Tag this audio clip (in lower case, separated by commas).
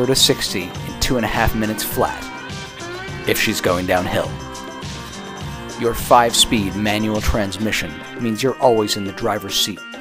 music, speech